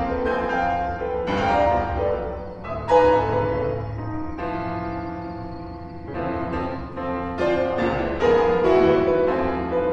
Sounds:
Music

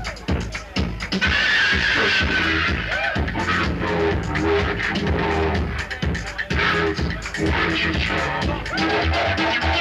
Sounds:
Music

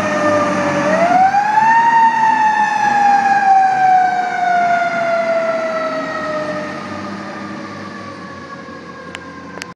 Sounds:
Truck, Vehicle

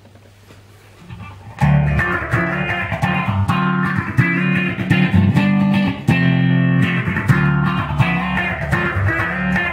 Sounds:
Music, Distortion, Musical instrument, Guitar, Plucked string instrument, Effects unit

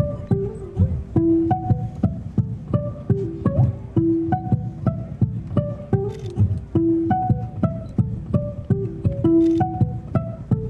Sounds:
Music

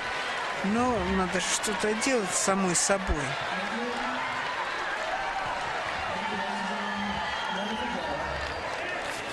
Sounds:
Speech

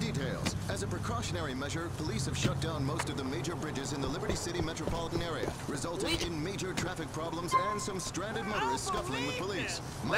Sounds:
Speech

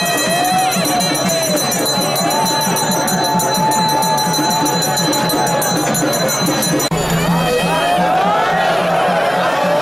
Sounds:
Music, Speech

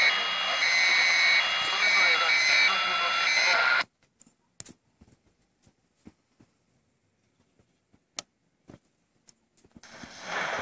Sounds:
Speech

